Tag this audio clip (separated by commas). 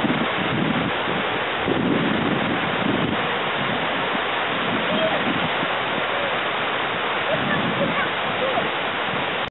Speech